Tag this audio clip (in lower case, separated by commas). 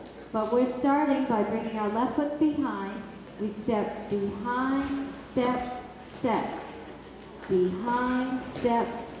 speech